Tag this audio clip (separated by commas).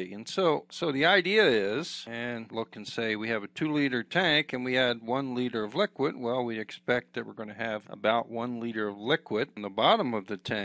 Speech